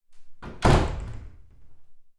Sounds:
door, wood, slam, home sounds

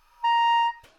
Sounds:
musical instrument, woodwind instrument, music

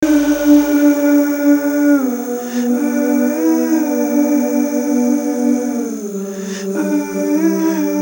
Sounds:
human voice

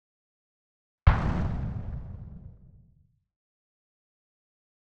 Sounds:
explosion

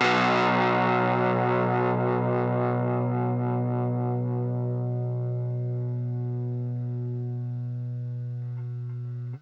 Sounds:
guitar, music, musical instrument, plucked string instrument

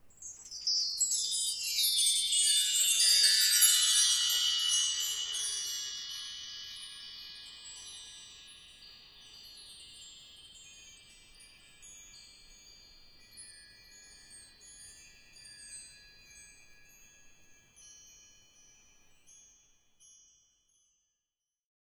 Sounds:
bell, chime

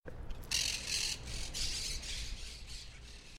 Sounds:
bird, wild animals, animal

